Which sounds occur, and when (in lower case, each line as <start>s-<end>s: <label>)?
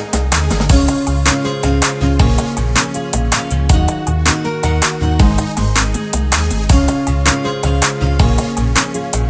0.0s-9.2s: music